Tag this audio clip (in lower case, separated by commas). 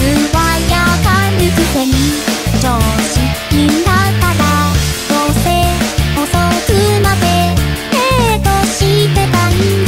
music